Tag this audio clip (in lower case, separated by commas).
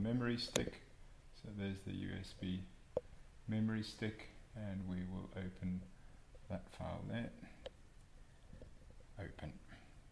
speech